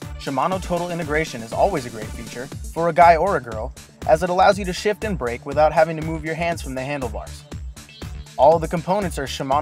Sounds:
music, speech

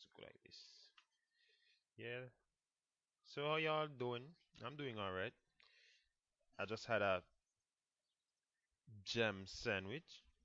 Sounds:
speech

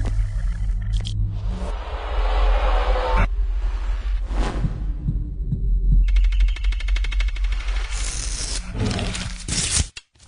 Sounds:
music

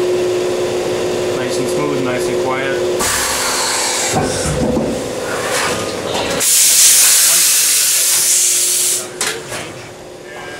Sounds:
speech

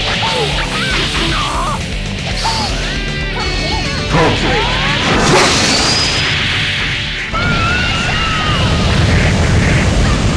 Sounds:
music, speech

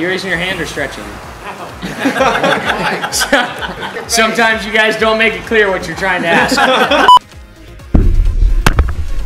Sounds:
music, speech, laughter

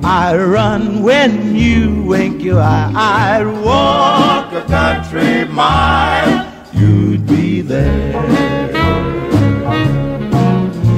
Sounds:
music, country, bluegrass

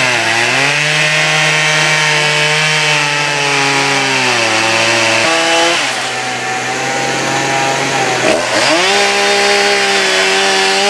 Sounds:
wood, sawing

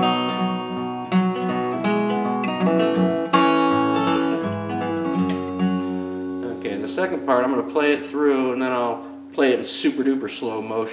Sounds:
musical instrument, strum, guitar, music, speech

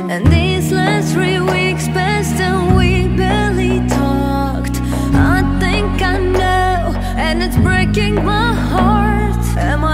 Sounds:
music, new-age music

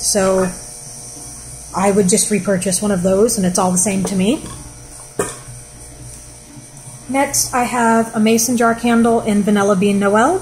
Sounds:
speech, inside a small room

